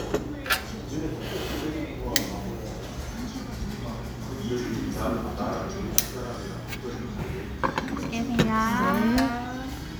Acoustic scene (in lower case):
crowded indoor space